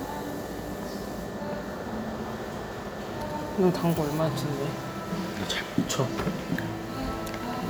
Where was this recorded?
in a cafe